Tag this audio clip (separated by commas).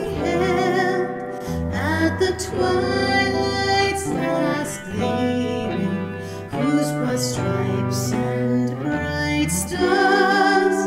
Music, inside a small room